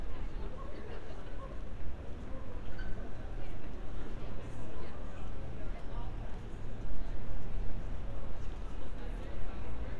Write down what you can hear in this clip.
unidentified human voice